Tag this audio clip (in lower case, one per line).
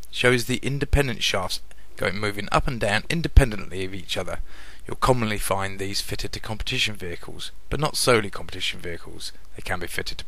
speech